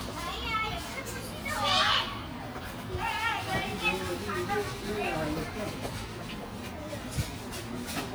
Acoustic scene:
park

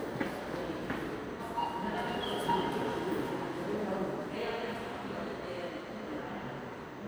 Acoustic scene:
subway station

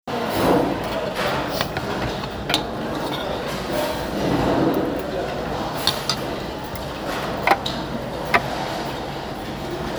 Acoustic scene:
restaurant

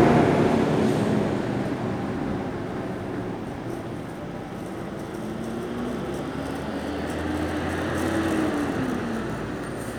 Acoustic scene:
street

